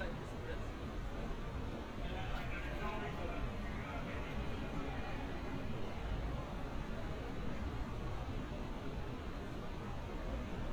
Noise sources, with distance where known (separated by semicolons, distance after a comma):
person or small group talking, far